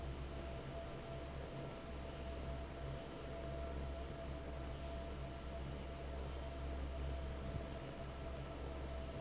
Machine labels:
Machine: fan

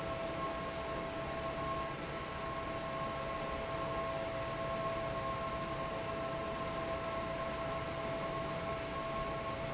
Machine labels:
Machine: fan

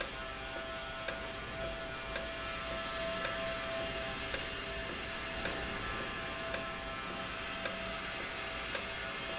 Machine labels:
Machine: valve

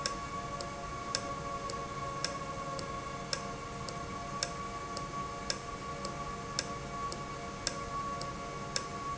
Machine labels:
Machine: valve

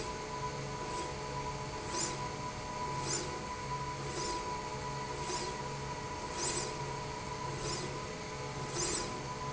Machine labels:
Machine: slide rail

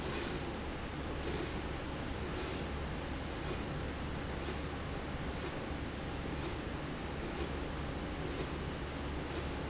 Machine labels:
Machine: slide rail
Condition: normal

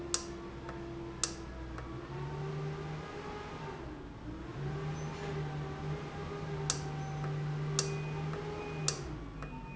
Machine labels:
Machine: valve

